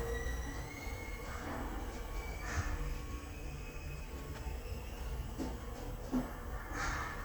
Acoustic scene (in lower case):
elevator